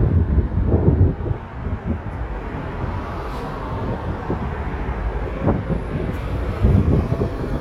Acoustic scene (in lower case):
street